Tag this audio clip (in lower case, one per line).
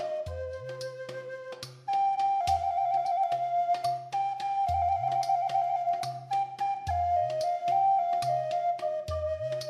music
flute